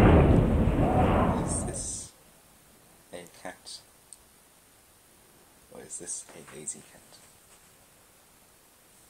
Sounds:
speech

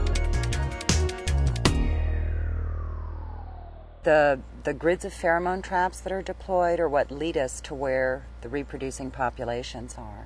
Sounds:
speech
music

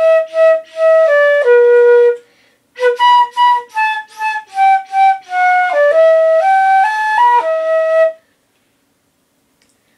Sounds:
music
flute

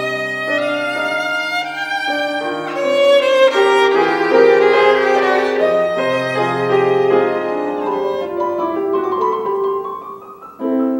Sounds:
classical music
music

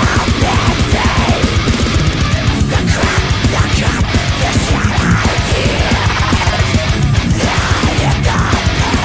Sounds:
music

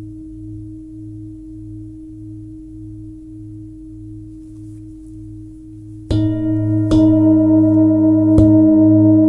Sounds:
singing bowl

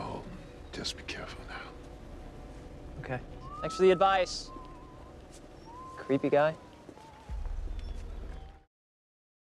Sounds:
music
speech

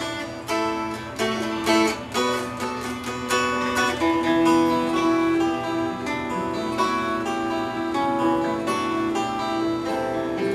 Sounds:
musical instrument
music
guitar
strum
plucked string instrument

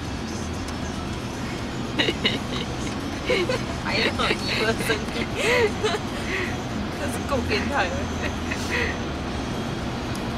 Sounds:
car
vehicle
speech
music

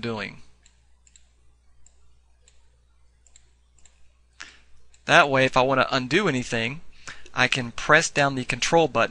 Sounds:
speech

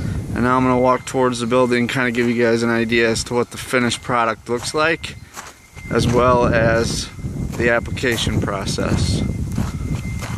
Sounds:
speech

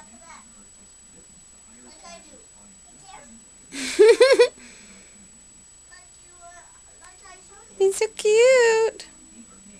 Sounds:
speech

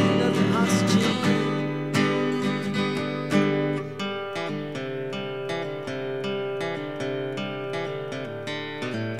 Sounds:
music

